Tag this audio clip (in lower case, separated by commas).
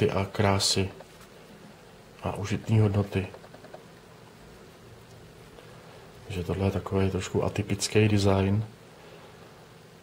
speech